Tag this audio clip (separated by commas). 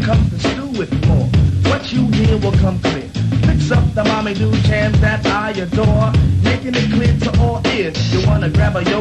Music